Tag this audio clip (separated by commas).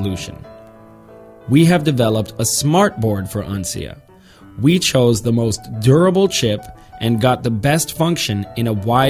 Speech, Music